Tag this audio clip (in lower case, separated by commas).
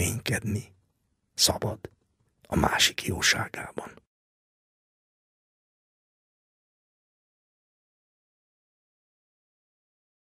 speech